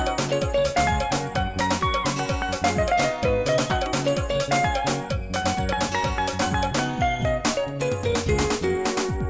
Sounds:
music

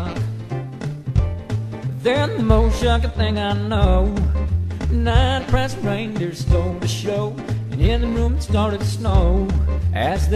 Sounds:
music

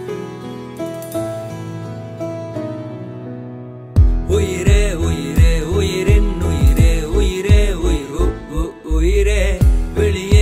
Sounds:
music

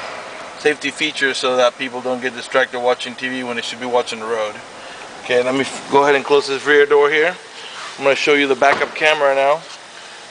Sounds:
speech

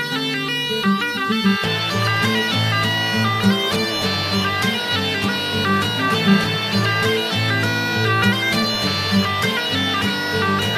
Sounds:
bagpipes
wind instrument

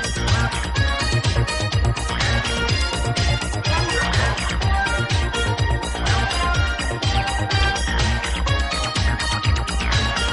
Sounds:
music
pop music

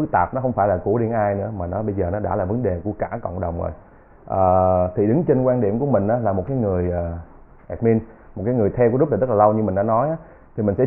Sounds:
speech

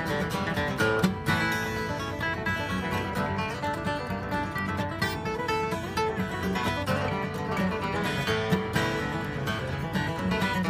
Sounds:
music

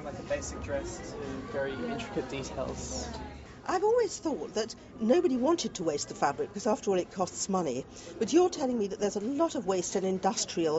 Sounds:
female speech

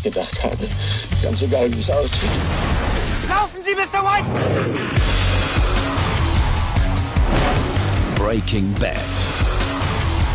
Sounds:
music
speech

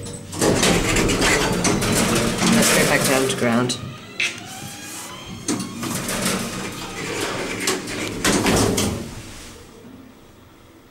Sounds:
speech

